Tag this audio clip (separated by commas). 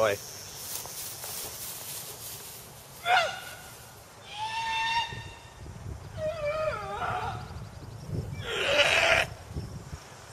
Speech